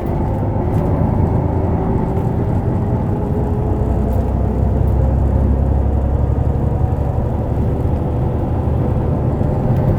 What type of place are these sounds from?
bus